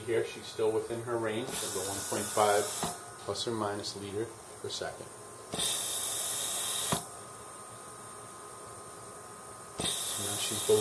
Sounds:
Breathing, Speech

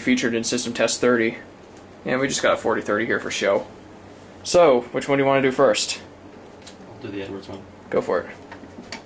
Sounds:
Speech

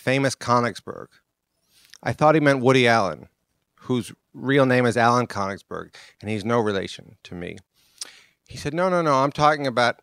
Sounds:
Speech

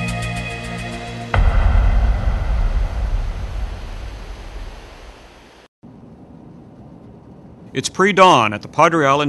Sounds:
Music, Waves, Speech, Ocean

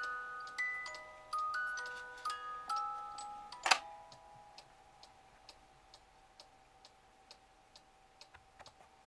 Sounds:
Tick-tock, Tick

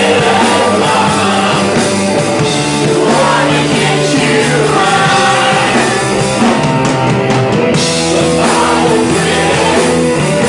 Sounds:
Roll, Music, Rock and roll

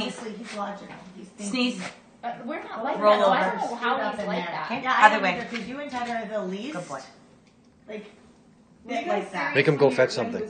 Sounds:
Speech

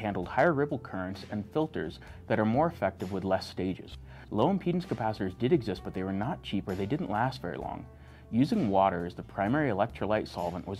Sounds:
Speech

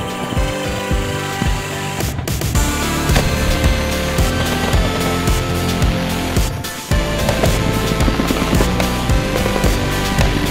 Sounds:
Music

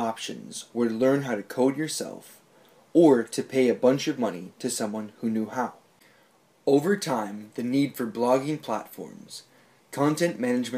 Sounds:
Speech

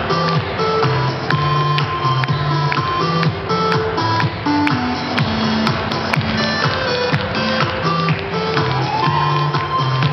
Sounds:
tap dancing

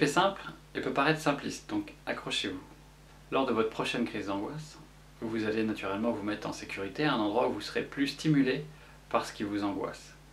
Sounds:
Speech

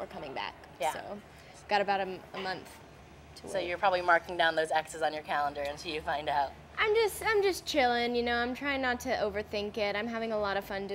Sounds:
Speech

